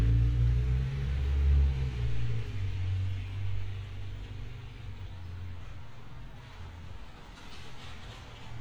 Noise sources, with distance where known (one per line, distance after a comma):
medium-sounding engine, far